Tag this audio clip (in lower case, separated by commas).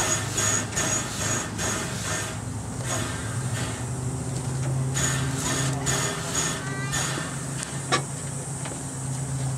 vehicle, train